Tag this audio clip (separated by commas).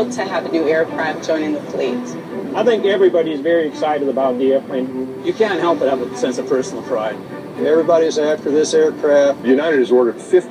Music, Speech